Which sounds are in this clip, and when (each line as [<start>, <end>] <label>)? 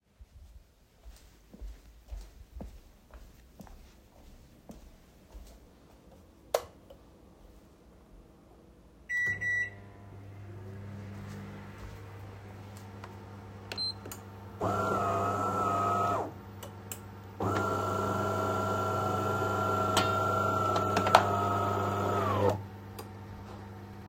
[0.85, 6.44] footsteps
[6.40, 6.76] light switch
[9.04, 24.08] microwave
[13.62, 23.21] coffee machine